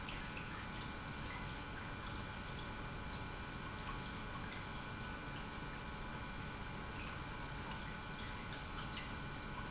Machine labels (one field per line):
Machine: pump